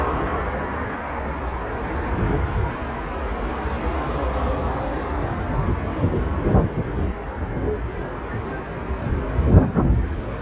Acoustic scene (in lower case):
street